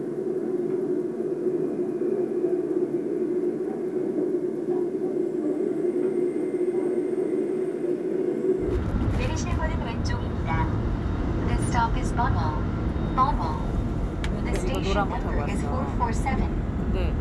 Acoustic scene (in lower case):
subway train